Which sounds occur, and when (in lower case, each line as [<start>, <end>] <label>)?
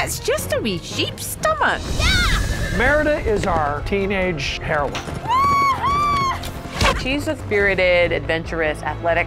[0.00, 1.74] speech synthesizer
[0.00, 9.25] music
[1.97, 2.40] speech synthesizer
[2.75, 4.88] man speaking
[3.30, 3.45] generic impact sounds
[4.88, 5.03] generic impact sounds
[5.19, 6.50] speech synthesizer
[6.13, 6.50] generic impact sounds
[6.75, 9.25] female speech